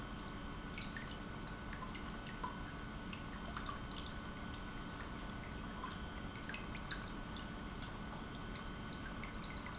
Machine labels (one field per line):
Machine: pump